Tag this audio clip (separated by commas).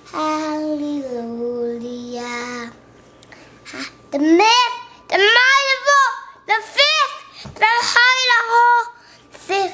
Child singing